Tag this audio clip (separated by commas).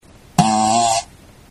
Fart